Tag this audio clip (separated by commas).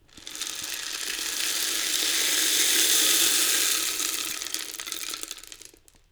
Rattle (instrument), Music, Musical instrument, Percussion